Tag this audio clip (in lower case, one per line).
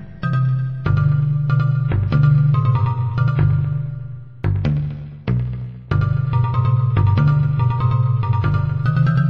tick-tock
music